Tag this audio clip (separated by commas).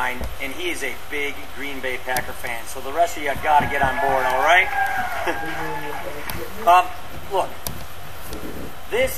Male speech, Narration, Speech